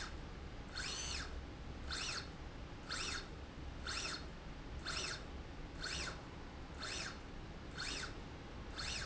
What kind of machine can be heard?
slide rail